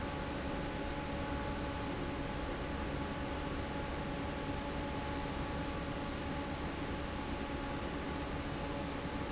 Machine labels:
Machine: fan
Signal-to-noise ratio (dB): -6 dB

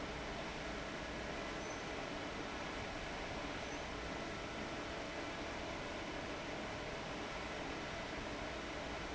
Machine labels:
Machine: fan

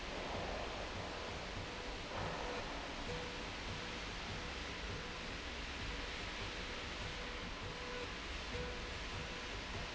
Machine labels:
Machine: slide rail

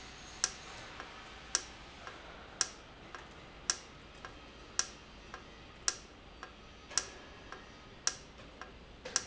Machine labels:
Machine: valve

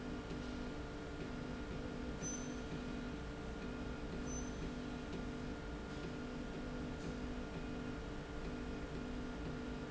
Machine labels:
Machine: slide rail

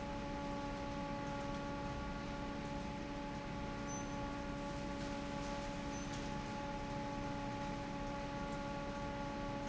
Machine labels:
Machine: fan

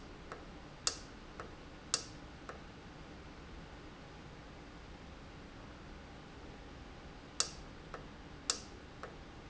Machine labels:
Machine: valve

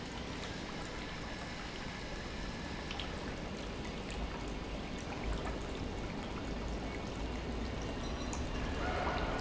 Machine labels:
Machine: pump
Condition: normal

